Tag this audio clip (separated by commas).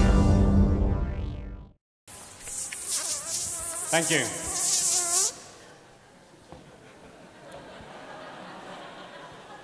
Insect, Mosquito, housefly